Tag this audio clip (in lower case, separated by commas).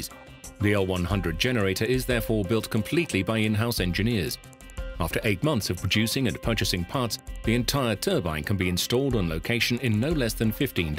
music, speech